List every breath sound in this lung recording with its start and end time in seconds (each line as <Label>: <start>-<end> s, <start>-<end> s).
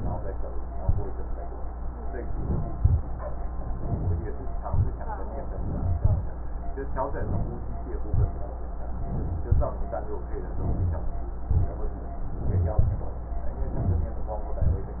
Inhalation: 2.16-2.77 s, 3.62-4.35 s, 5.33-5.98 s, 7.00-7.88 s, 8.88-9.51 s, 10.57-11.20 s, 12.30-12.77 s, 13.57-14.15 s
Exhalation: 2.77-3.04 s, 4.63-5.03 s, 5.98-6.30 s, 8.03-8.54 s, 9.51-9.83 s, 11.48-11.76 s, 12.79-13.17 s, 14.61-15.00 s